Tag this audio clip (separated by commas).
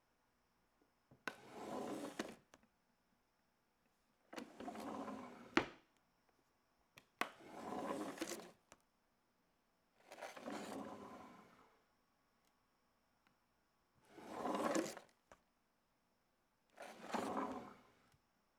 home sounds, Drawer open or close